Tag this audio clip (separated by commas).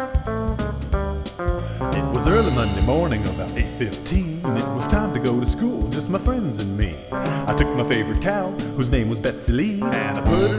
Music